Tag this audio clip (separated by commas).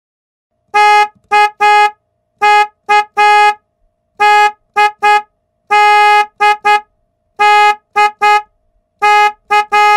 honking